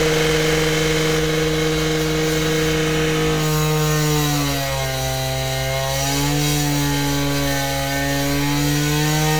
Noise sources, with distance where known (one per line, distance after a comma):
unidentified powered saw, near